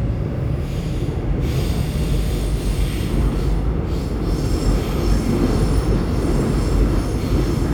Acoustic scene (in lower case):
subway train